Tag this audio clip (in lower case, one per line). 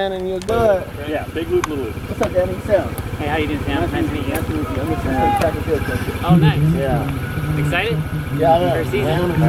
outside, urban or man-made
speech